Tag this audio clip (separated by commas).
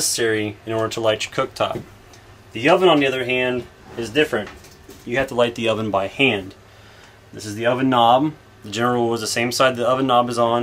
Speech